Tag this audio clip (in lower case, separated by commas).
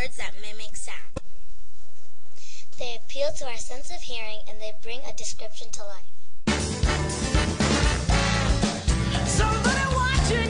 music, speech